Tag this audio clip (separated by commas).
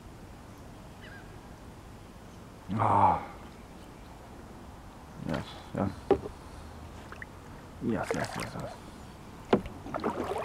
Boat, Vehicle, kayak, Speech